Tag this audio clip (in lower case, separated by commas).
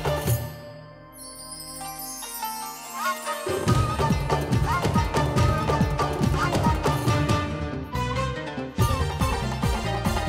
music